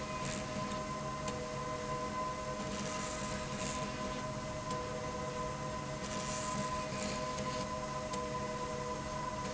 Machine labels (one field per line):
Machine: slide rail